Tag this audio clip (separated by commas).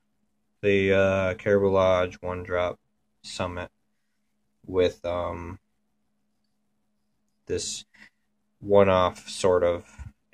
Speech, inside a small room